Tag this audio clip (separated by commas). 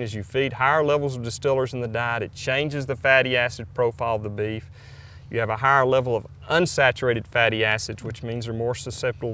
Speech